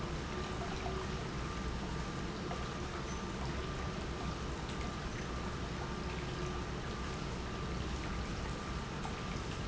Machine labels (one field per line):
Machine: pump